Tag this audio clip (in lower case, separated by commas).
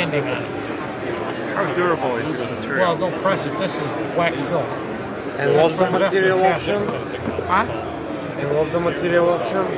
speech